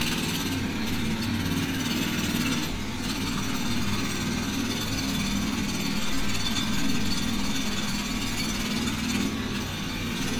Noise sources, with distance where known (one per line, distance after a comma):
jackhammer